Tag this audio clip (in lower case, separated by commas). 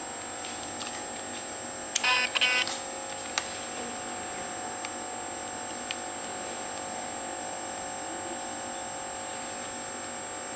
inside a small room